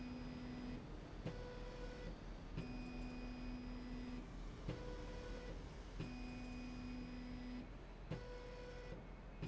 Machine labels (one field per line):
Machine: slide rail